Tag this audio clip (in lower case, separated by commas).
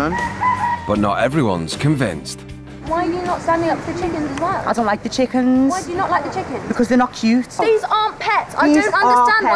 speech, music